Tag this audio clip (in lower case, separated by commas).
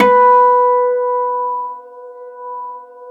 musical instrument, guitar, acoustic guitar, plucked string instrument, music